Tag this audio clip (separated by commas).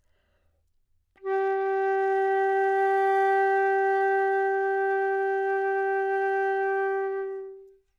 Music, Wind instrument, Musical instrument